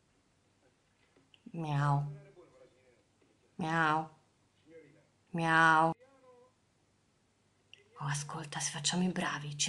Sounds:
Speech, Meow

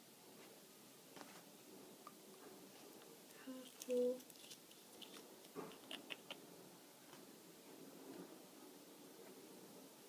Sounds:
Silence, Speech

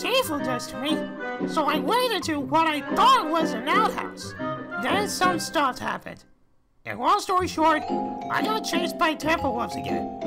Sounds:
Music, Speech

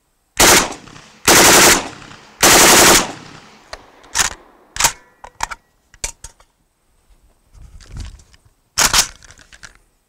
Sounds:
machine gun shooting

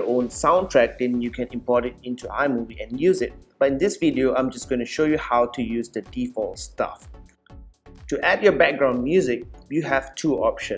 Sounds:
Music, Speech

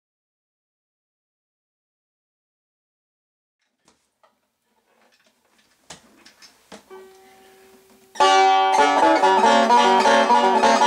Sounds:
Music, Banjo, Plucked string instrument, Bluegrass, Bowed string instrument, Musical instrument

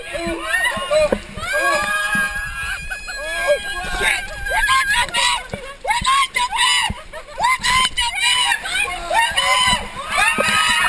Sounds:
Speech

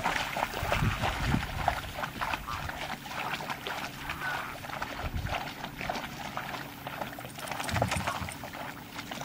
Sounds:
Water vehicle, outside, rural or natural

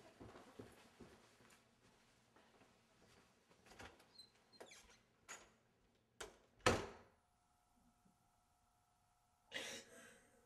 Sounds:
Silence

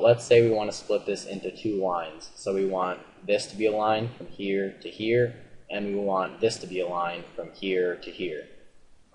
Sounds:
Speech

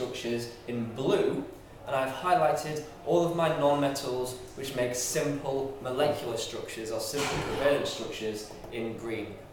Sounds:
Speech

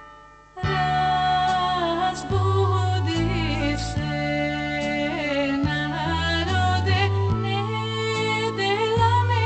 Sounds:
Music

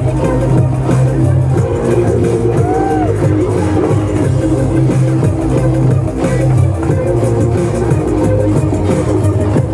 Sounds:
Music

